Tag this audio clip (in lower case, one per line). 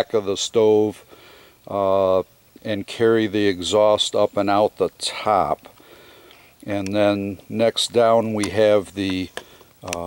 speech